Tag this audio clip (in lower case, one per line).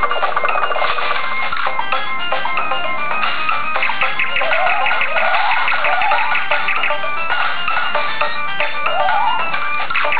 music